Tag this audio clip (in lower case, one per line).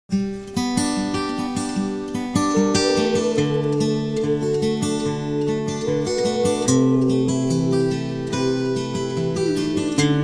acoustic guitar